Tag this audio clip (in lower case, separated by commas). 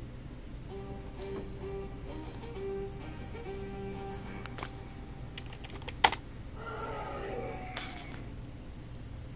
music, typing